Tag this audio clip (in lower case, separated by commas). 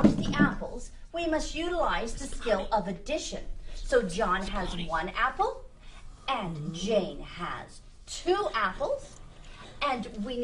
speech